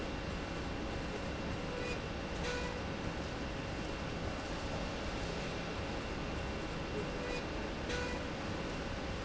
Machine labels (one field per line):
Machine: slide rail